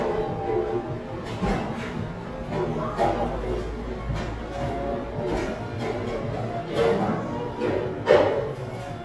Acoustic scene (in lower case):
cafe